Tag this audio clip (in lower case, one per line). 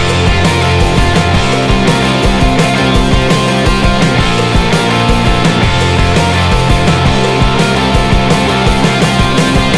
music